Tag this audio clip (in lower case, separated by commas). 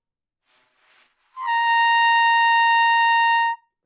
musical instrument, music, brass instrument, trumpet